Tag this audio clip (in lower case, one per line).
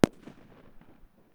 explosion
fireworks